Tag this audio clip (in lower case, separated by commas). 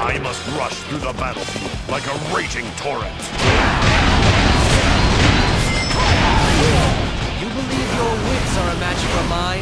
music, speech